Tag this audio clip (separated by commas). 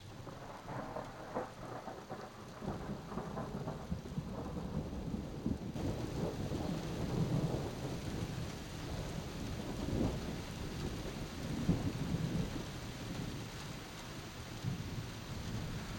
Thunder, Thunderstorm